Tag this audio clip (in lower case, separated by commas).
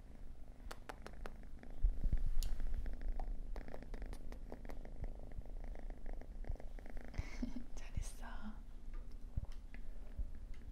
cat purring